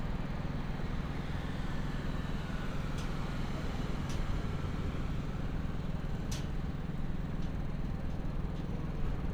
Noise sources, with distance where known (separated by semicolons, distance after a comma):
engine of unclear size, near